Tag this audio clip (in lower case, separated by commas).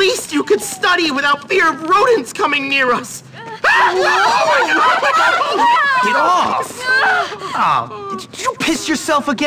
speech